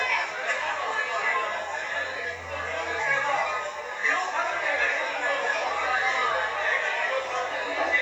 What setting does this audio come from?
crowded indoor space